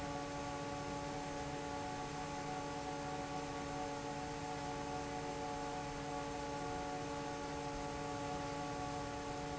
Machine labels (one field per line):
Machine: fan